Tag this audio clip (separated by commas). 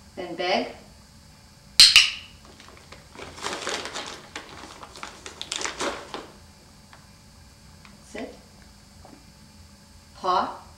Speech